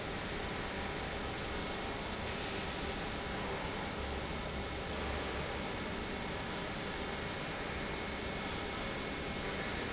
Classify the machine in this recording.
pump